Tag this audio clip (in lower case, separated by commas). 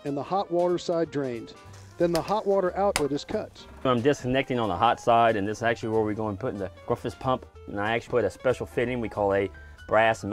speech, music